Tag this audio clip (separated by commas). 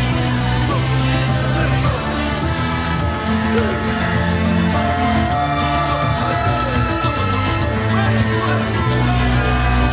Funk, Music, Theme music